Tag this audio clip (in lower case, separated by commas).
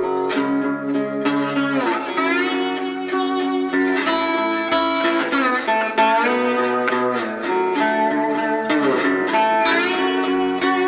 slide guitar